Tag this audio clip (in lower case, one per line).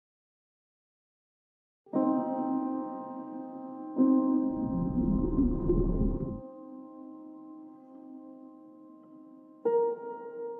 music